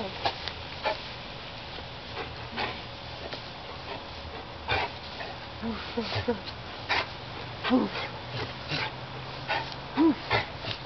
Dog panting and barking